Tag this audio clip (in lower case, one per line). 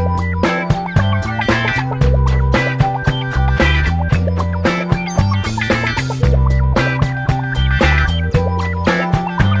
music